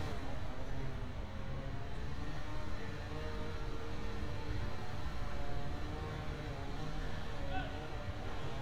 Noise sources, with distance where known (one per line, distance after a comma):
chainsaw